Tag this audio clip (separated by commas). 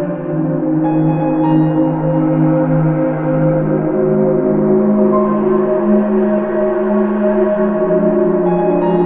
Music